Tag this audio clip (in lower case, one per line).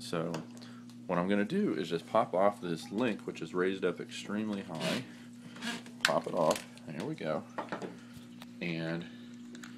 inside a small room
speech